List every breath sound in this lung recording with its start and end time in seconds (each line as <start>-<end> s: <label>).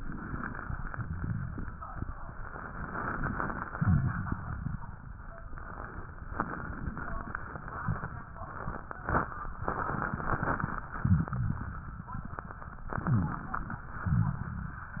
0.00-0.59 s: inhalation
0.77-1.92 s: exhalation
0.77-1.92 s: crackles
2.53-3.68 s: inhalation
3.70-4.84 s: exhalation
3.70-4.84 s: crackles
6.29-7.61 s: inhalation
9.65-10.82 s: inhalation
11.00-12.16 s: exhalation
11.00-12.16 s: crackles
12.96-13.85 s: inhalation
12.96-13.85 s: crackles
14.03-14.91 s: exhalation
14.03-14.91 s: crackles